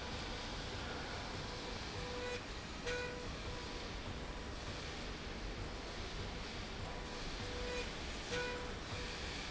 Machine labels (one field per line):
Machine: slide rail